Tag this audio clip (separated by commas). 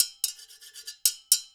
Domestic sounds, dishes, pots and pans